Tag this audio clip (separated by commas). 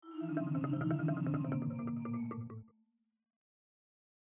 Marimba, Percussion, Musical instrument, Music, Mallet percussion